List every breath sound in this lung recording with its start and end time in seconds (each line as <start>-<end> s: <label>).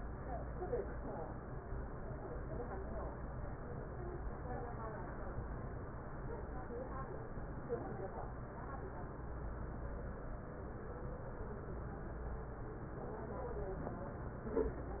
No breath sounds were labelled in this clip.